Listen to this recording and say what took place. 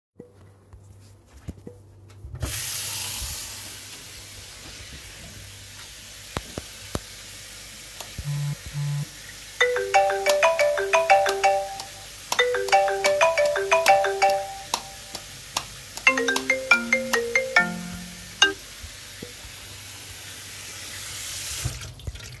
I turned on the water faucet, then my phone started ringing, while flickering the light at the same time